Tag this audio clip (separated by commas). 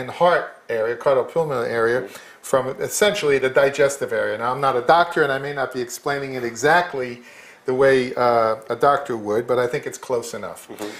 Speech